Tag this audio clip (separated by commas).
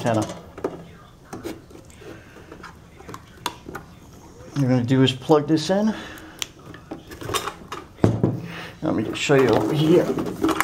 Speech